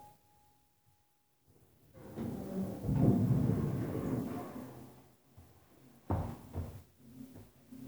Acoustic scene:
elevator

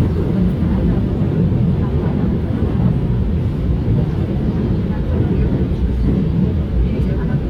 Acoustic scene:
subway train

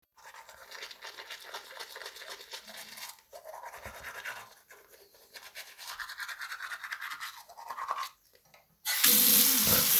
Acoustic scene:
restroom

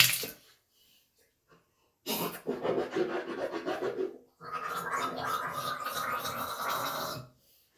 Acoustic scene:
restroom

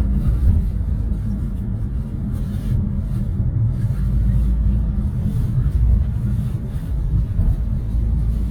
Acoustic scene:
car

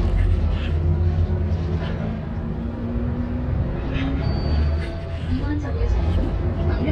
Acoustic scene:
bus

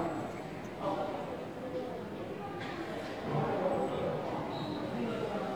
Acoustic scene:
subway station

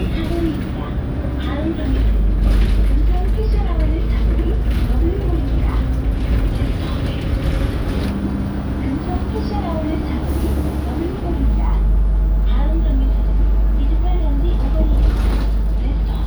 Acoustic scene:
bus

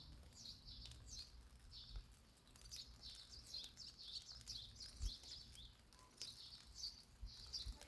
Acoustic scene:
park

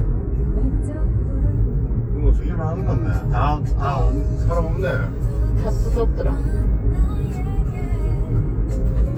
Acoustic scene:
car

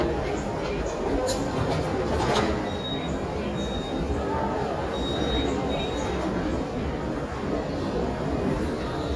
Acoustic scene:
subway station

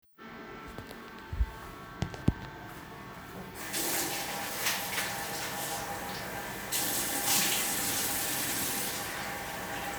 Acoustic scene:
restroom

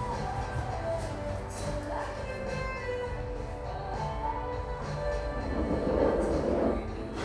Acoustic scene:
cafe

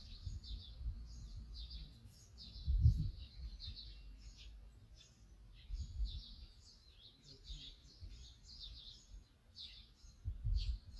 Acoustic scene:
park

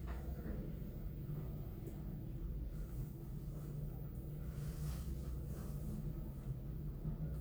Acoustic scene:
elevator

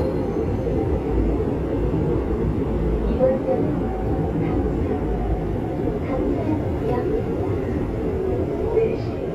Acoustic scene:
subway train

